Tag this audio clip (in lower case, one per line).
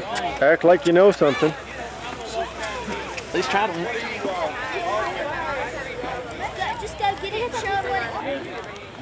speech
clip-clop